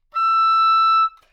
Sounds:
Musical instrument, Music, Wind instrument

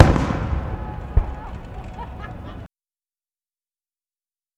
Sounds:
Fireworks, Explosion

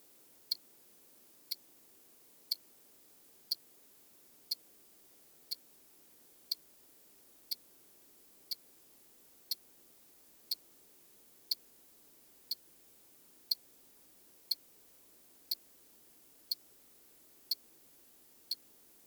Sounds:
Mechanisms, Tick-tock, Clock

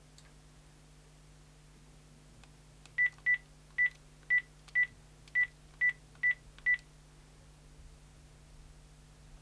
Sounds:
Telephone, Alarm

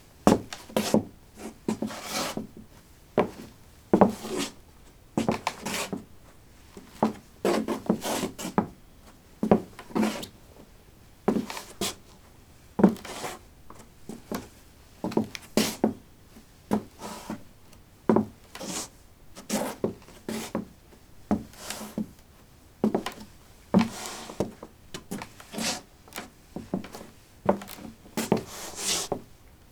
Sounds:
Walk

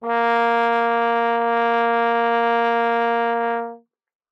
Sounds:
Musical instrument, Music, Brass instrument

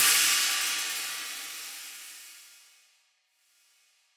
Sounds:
Cymbal, Musical instrument, Percussion, Hi-hat, Music

